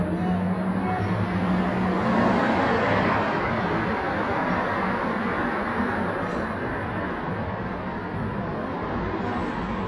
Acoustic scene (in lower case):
elevator